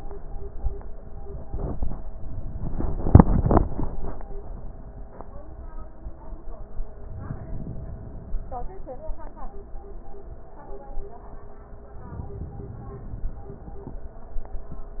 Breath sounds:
7.03-8.44 s: inhalation
12.05-13.46 s: inhalation

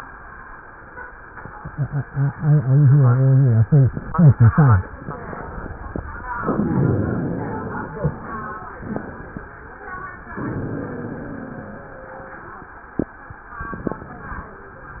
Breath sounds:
6.45-7.95 s: inhalation
10.44-11.94 s: inhalation
10.44-12.47 s: wheeze

